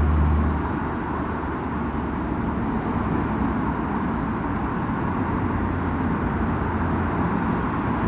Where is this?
on a street